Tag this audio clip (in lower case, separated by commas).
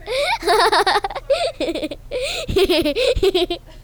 laughter, human voice